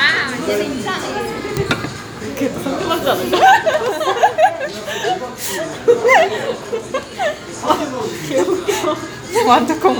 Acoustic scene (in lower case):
restaurant